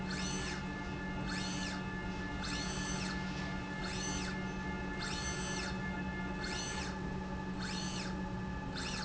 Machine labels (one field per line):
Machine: slide rail